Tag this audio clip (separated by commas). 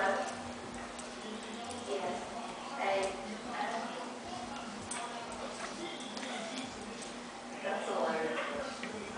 Speech